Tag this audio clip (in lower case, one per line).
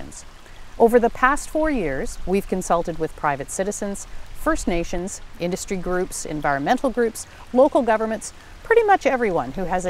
stream